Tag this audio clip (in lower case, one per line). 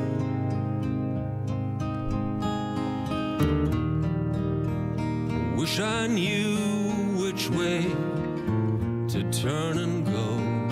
music